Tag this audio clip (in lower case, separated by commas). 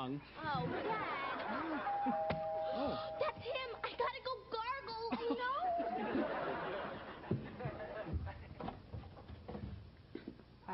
speech